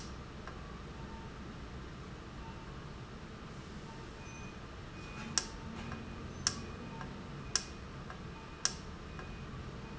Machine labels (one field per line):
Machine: valve